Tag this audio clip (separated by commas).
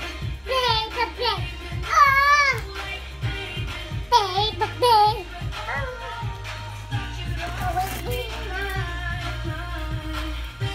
child singing